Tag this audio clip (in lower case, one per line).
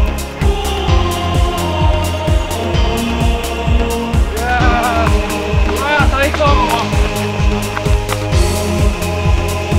speech
music
run